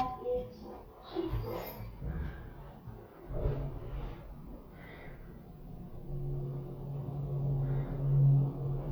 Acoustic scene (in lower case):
elevator